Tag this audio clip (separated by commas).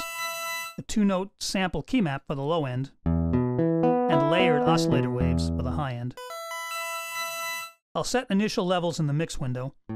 Speech, Music